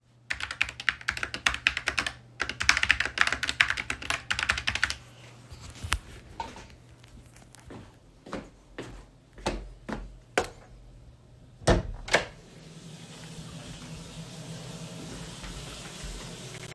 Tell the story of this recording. write on keyboard, go to door, turn off light, open door and hear waterflow during it